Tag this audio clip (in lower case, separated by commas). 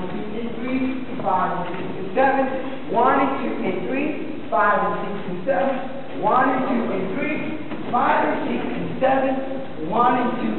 speech